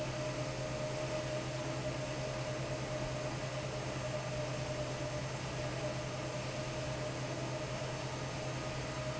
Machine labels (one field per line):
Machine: fan